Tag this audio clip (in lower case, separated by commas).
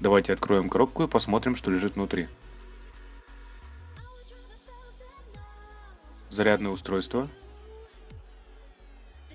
speech, music